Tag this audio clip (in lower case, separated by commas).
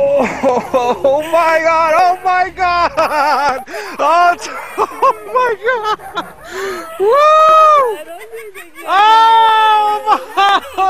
speech